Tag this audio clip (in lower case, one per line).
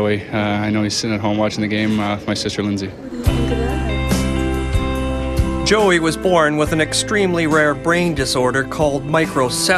speech
music